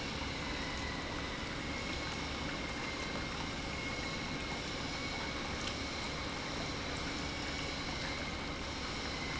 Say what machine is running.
pump